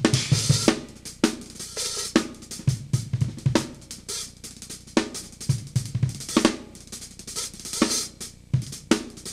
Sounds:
Drum, Music, Drum kit, Snare drum

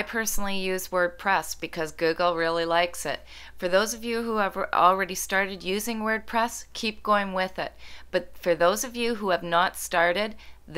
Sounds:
Speech

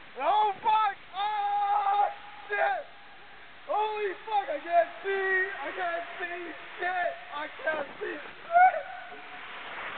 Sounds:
Speech

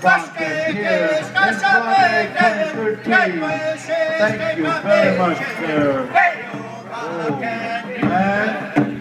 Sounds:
Bass drum, Music, Drum, Drum kit, Musical instrument

